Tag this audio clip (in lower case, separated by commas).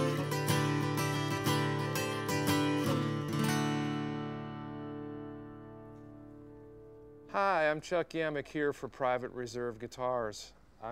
strum, guitar, musical instrument, plucked string instrument, music